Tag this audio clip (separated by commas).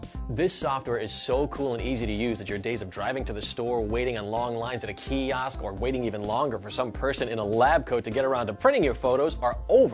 Music, Speech